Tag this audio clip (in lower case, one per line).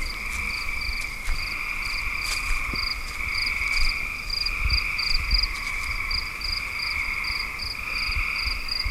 wild animals
cricket
animal
frog
insect